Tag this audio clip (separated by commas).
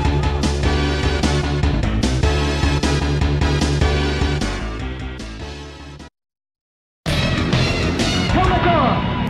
Music, Speech